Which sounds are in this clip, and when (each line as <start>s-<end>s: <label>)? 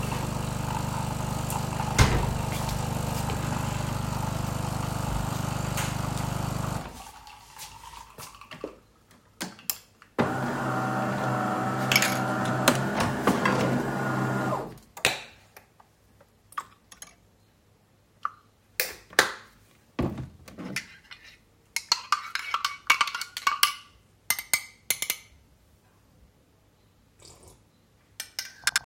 0.0s-15.4s: coffee machine
3.0s-4.3s: footsteps
7.9s-9.0s: footsteps
12.3s-12.9s: cutlery and dishes
13.5s-14.0s: cutlery and dishes
21.7s-25.3s: cutlery and dishes
28.1s-28.9s: cutlery and dishes